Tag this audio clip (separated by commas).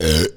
eructation